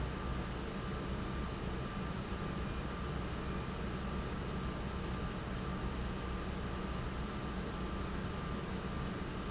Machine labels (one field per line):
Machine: pump